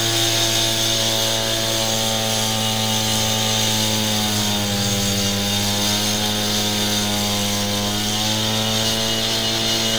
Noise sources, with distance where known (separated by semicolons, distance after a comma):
unidentified impact machinery, near